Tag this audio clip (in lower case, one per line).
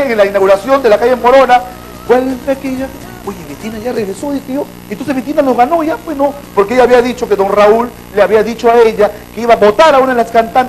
speech